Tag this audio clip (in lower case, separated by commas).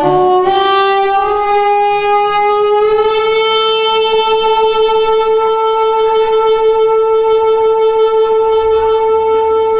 music